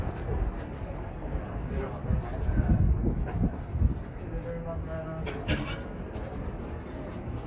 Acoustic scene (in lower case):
street